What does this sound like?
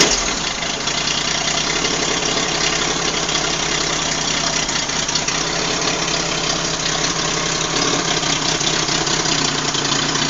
A vehicle engine is idling deeply